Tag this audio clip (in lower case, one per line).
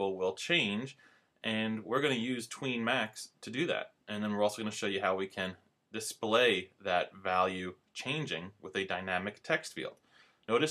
speech